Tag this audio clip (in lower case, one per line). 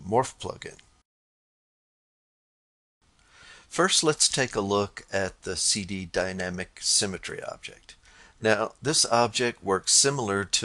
speech